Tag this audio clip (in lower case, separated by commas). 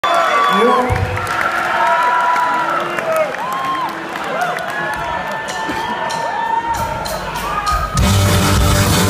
music